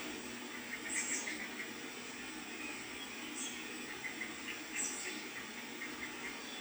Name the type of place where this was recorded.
park